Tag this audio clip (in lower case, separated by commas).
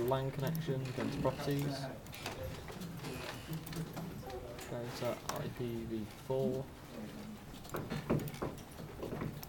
speech